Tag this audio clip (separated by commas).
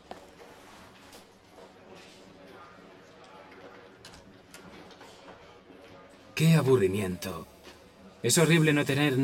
Speech